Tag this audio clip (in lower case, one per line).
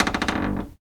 cupboard open or close
home sounds